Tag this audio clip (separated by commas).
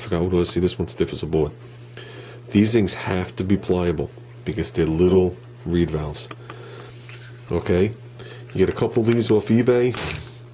Speech